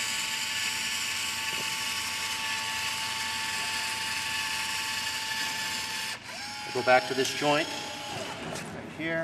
A man using a drill before giving further direction